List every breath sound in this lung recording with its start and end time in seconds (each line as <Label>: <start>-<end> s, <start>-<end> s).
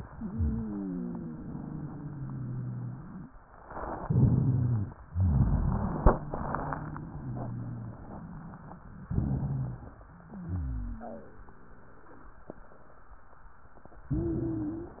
Inhalation: 3.95-4.96 s, 9.03-10.00 s, 14.05-15.00 s
Exhalation: 5.06-8.96 s, 10.06-11.45 s
Wheeze: 0.04-3.29 s, 3.95-4.96 s, 5.06-8.13 s, 9.03-10.00 s, 10.06-11.45 s, 14.05-15.00 s